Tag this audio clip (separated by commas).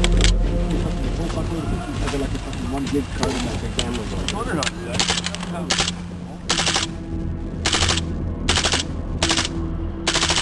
Speech, outside, rural or natural, Music